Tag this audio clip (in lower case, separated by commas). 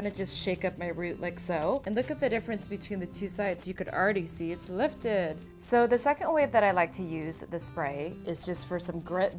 music, speech